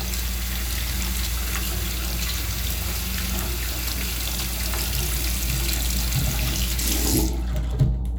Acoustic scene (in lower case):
restroom